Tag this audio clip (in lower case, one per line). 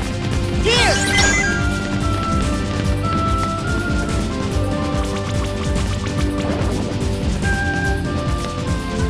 music
speech